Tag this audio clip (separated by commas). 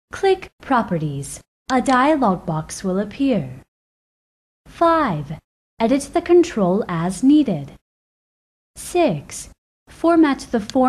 Speech